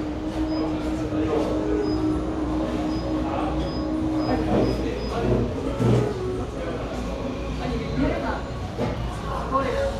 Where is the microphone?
in a cafe